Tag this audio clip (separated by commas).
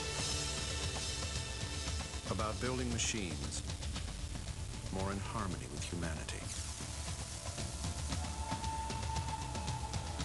Speech, Music, Musical instrument